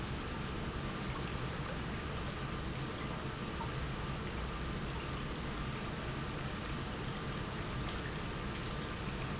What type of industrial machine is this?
pump